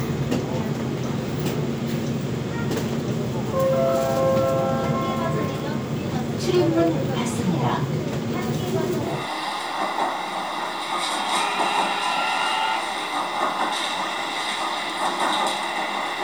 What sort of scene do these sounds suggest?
subway train